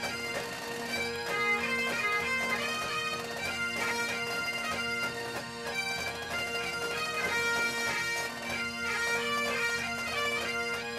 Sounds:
bagpipes

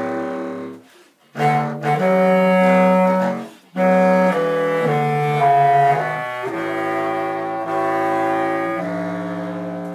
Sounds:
music
musical instrument

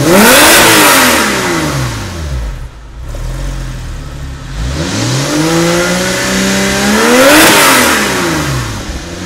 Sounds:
car
vehicle
accelerating

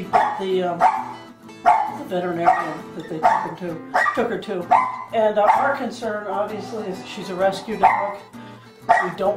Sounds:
speech
domestic animals
bow-wow
dog
yip
music
animal

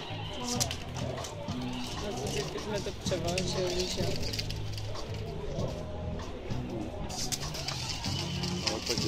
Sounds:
speech
music

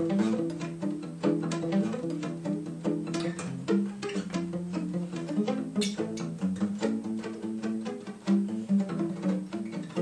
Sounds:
musical instrument
music
pizzicato
violin

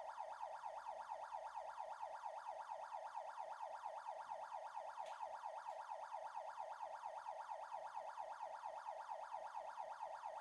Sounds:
police car (siren)

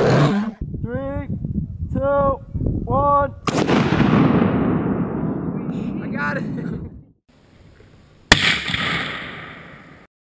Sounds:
speech
outside, rural or natural

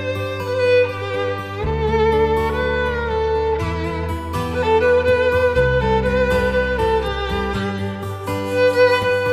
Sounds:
musical instrument
fiddle
music

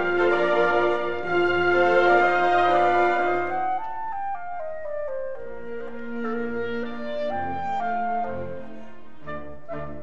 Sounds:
playing clarinet

